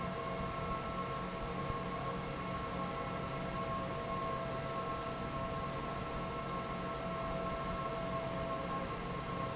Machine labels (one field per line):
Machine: fan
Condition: normal